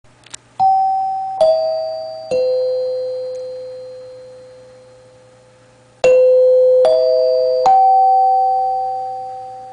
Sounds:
music

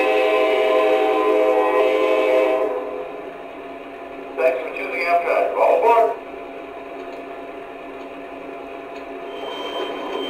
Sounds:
speech

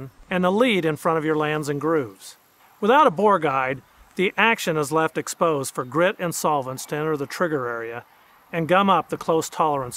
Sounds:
speech

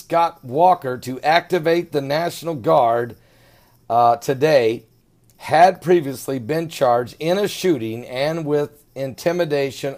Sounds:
speech

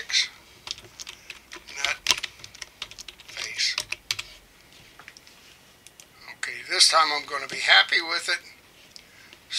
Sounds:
typing, speech

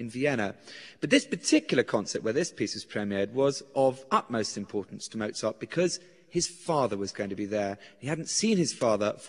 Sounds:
speech

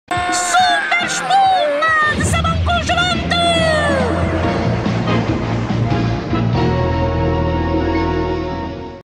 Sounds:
speech, music

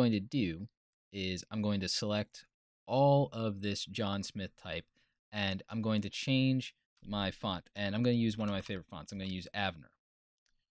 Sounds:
speech

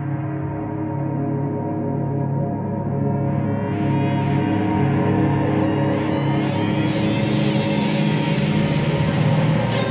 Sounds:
gong

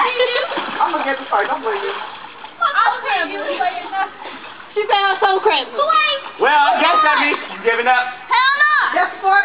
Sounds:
gurgling, speech

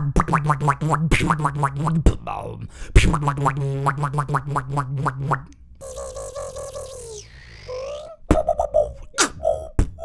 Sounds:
beat boxing

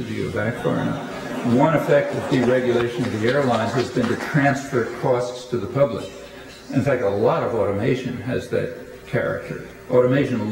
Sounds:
speech, inside a large room or hall

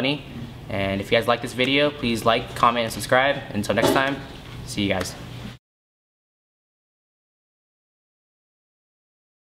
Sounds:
speech

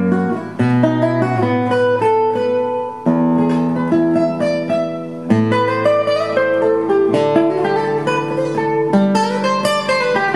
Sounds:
plucked string instrument, musical instrument, music, guitar, strum

